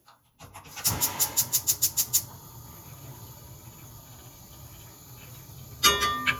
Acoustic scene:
kitchen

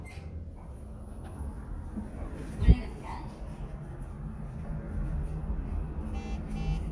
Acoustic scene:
elevator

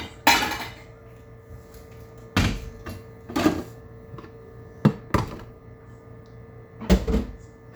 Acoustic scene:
kitchen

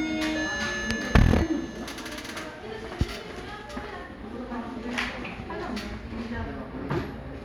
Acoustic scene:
crowded indoor space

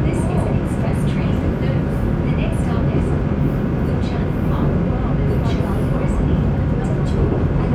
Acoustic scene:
subway train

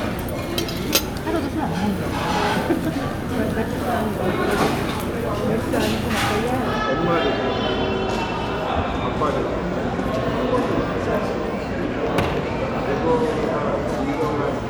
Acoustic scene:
crowded indoor space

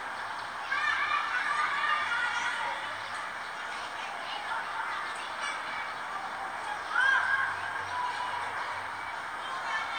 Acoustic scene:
residential area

